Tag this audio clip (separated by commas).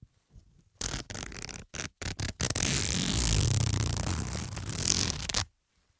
Zipper (clothing), home sounds